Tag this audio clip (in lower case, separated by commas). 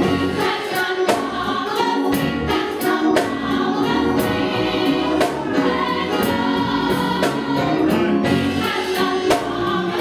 music, choir, female singing